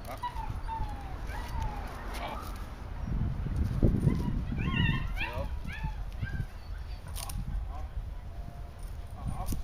A dog is whining and whimpering, and an adult male is speaking